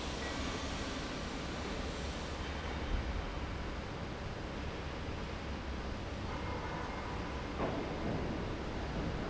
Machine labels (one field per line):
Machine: fan